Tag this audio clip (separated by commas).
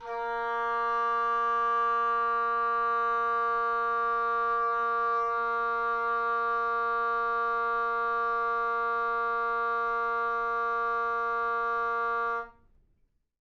woodwind instrument, Music, Musical instrument